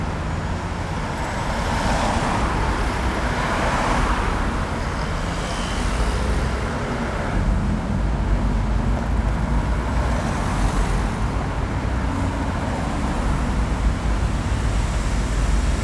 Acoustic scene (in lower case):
street